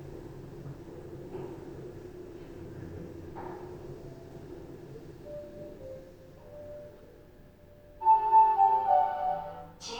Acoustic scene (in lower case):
elevator